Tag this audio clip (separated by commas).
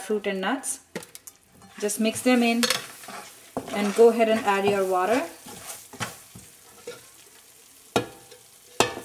inside a small room, Speech, Frying (food)